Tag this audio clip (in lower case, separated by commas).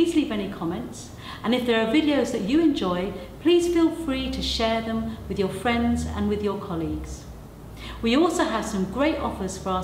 speech